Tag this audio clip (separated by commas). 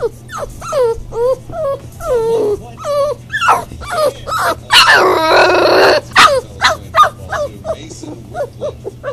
pets, Animal, Speech, Dog